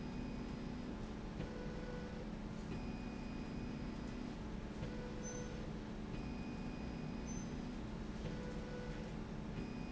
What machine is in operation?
slide rail